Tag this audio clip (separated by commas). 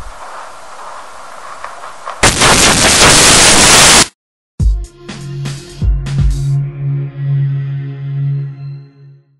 Music